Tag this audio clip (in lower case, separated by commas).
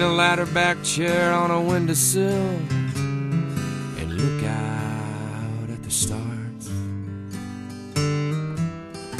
musical instrument, guitar, strum, acoustic guitar, music, plucked string instrument